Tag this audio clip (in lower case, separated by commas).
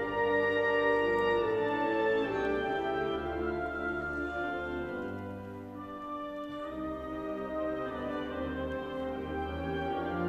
music